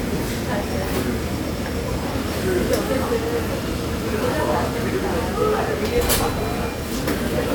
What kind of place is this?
restaurant